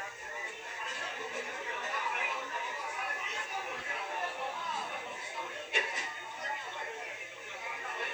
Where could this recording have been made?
in a restaurant